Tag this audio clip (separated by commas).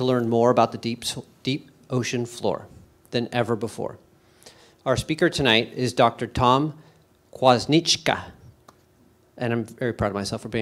Speech